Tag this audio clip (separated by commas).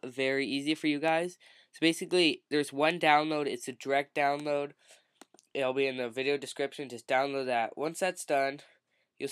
Speech